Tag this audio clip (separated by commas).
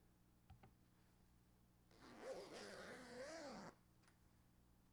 Zipper (clothing), home sounds